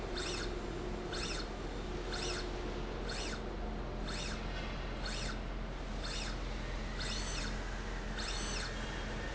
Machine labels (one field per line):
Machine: slide rail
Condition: normal